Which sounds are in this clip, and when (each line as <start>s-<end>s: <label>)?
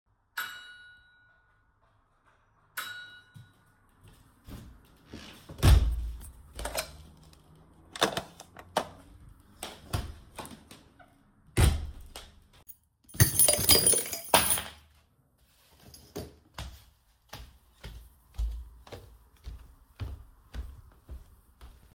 0.3s-1.1s: bell ringing
2.7s-3.6s: bell ringing
5.4s-12.6s: door
13.1s-14.9s: keys
16.3s-22.0s: footsteps